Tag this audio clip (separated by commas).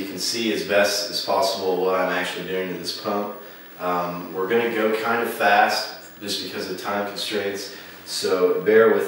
Speech